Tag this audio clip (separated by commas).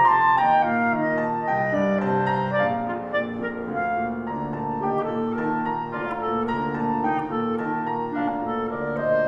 Clarinet, playing clarinet